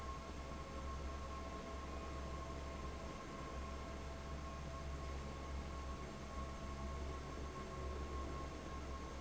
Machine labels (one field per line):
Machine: fan